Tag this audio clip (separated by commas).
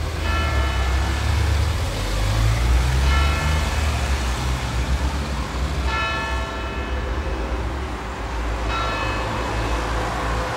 Car